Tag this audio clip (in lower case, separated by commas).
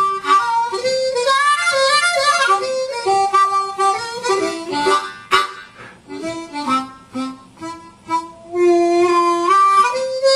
music, harmonica